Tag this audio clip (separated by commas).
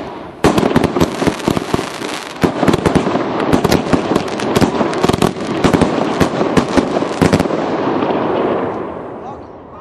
Speech